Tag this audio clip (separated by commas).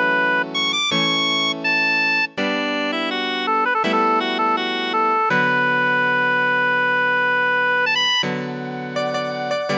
Music, Musical instrument